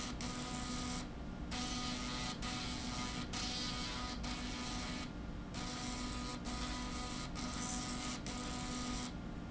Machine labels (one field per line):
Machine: slide rail